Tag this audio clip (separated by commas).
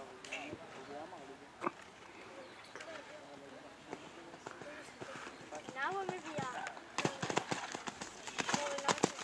Animal, Horse, livestock, outside, urban or man-made, Speech